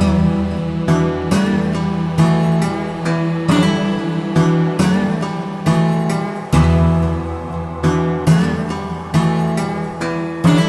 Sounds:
Music

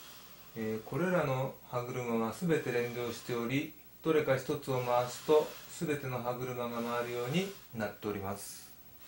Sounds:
Speech

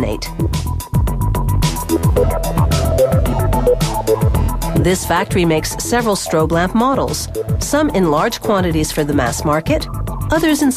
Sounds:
Music, Speech

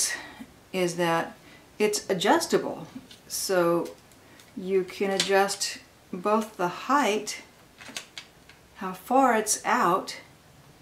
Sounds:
Speech

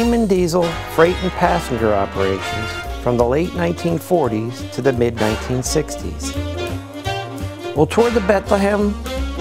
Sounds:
Music, Speech

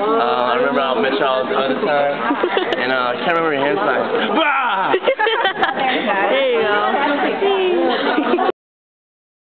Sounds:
Speech

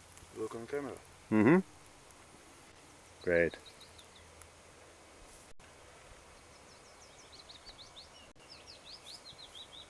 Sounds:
outside, rural or natural, Speech

